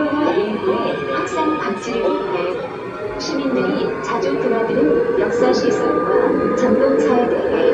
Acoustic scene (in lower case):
subway train